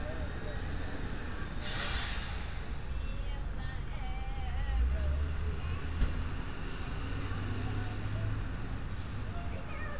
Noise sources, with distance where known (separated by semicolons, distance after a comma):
unidentified powered saw